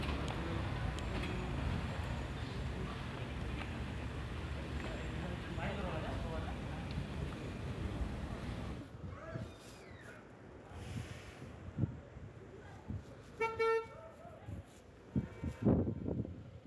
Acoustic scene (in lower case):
residential area